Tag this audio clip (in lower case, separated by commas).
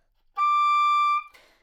wind instrument, music, musical instrument